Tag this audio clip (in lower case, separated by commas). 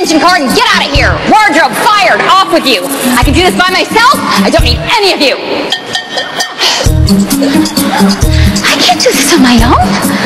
speech, music